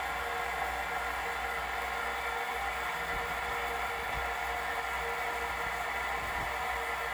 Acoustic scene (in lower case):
restroom